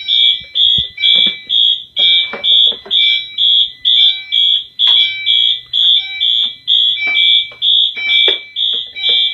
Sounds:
fire alarm, smoke alarm

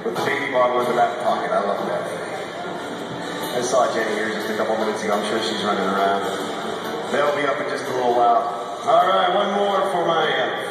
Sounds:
country, music, jazz, speech

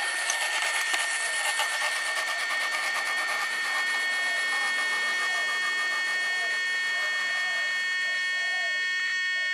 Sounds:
outside, rural or natural, train

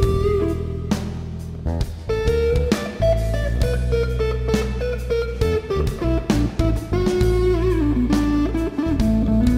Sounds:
guitar, inside a large room or hall, music

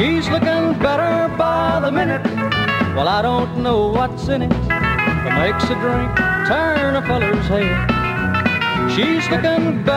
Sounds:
music, country

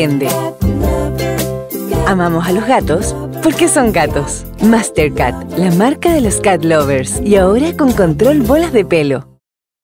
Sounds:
music, speech

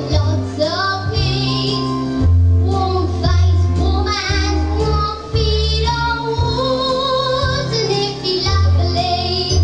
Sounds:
child singing, music, female singing

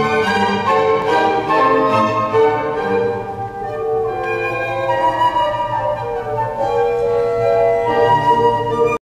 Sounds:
music

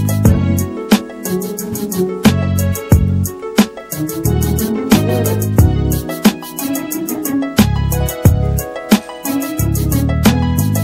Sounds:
music

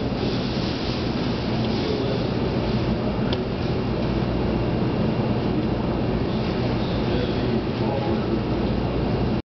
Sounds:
speech

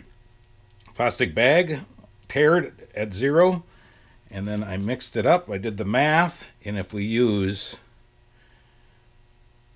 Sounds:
speech

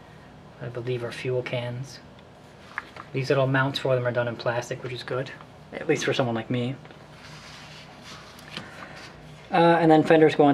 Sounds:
speech

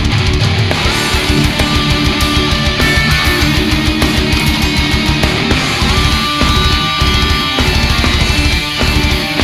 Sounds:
music

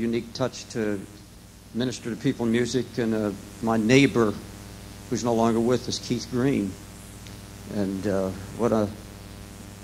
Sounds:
speech

